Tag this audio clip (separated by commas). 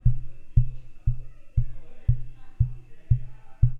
Tap, Human group actions